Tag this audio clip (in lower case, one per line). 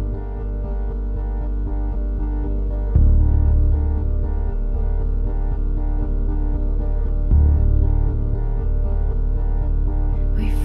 music